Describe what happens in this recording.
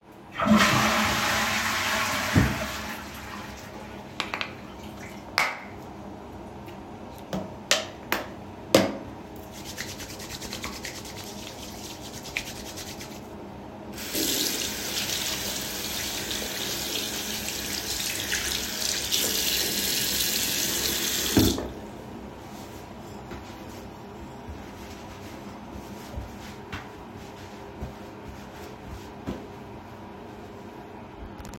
I flushed down the toilet and headed over the bathroom sink. I squeezed out some soap off its tube and washed my hands thoroughly, then turned on the water. After that, I dried my hands with a towel.